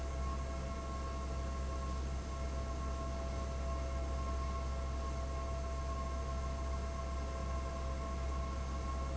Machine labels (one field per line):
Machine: fan